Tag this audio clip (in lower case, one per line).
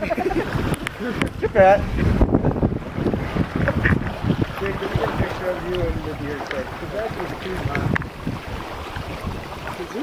speech
outside, rural or natural
water vehicle
vehicle